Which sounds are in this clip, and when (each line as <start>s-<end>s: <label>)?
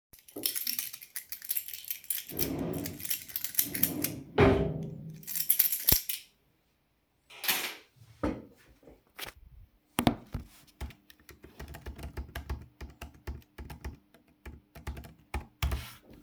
0.3s-6.7s: keys
2.4s-5.3s: wardrobe or drawer
7.2s-8.5s: keys
10.7s-16.2s: keyboard typing